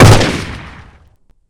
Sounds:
gunfire, Explosion

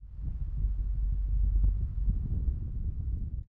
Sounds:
Thunder, Wind, Thunderstorm

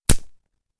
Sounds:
Wood

